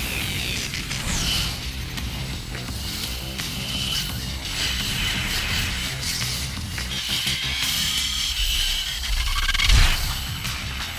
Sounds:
Music, Sound effect

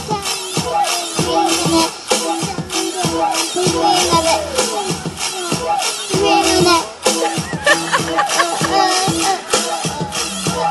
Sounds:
Music, Child singing

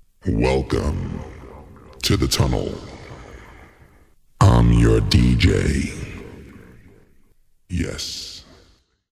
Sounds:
Speech

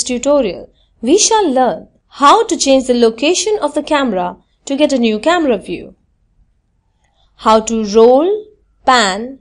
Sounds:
Speech

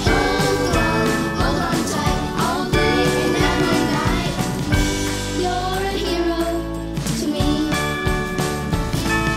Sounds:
Music

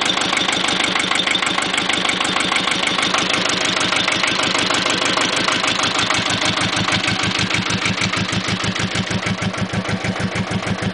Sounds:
Engine knocking, car engine knocking

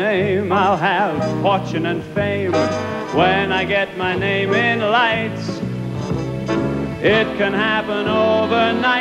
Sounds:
Male singing, Music

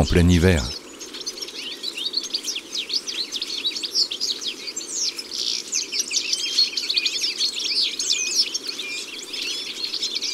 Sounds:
wood thrush calling

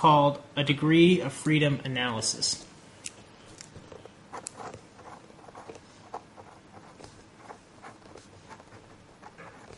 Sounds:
Writing, Speech

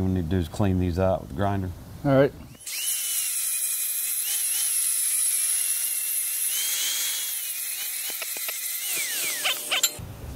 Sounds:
arc welding

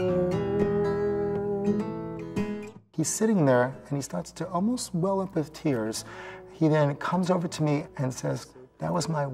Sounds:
Speech, Music

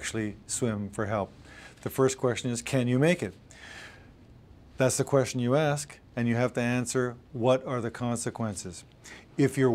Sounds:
Speech

